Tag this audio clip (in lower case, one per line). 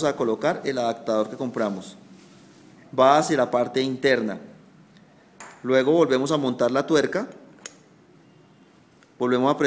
speech